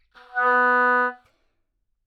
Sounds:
musical instrument, woodwind instrument, music

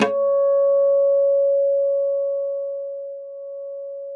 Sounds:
musical instrument, guitar, acoustic guitar, music, plucked string instrument

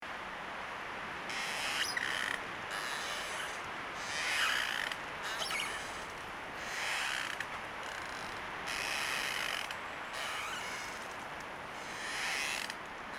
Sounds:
wind

